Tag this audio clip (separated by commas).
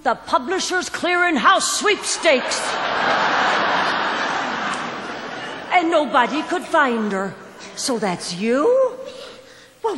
Speech